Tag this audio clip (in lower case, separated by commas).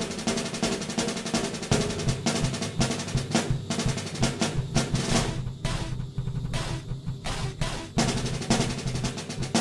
percussion, drum, drum roll, snare drum